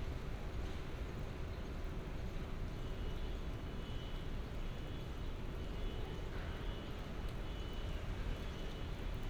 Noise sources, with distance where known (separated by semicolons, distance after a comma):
unidentified alert signal, far